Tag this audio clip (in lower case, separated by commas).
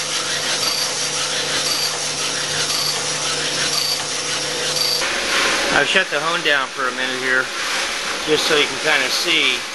tools